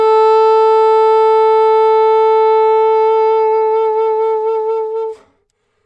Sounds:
wind instrument, music, musical instrument

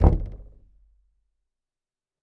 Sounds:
door, knock, domestic sounds, wood

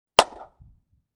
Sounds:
hands, clapping

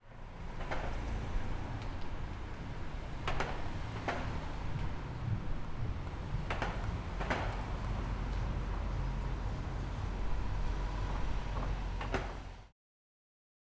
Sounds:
car, roadway noise, motor vehicle (road), engine, vehicle, car passing by

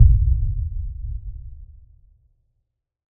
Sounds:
boom, explosion

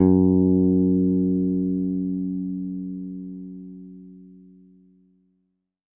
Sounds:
musical instrument, guitar, bass guitar, plucked string instrument, music

